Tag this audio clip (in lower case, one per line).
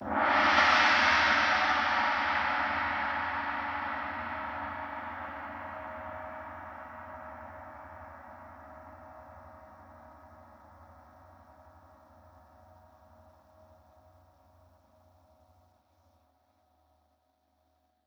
percussion
gong
musical instrument
music